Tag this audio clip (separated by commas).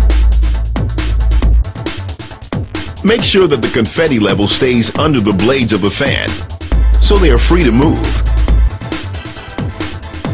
Trance music, Music, Speech